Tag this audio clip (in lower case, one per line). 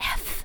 human voice
whispering